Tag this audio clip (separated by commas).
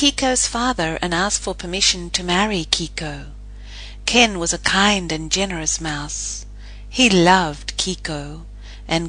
Speech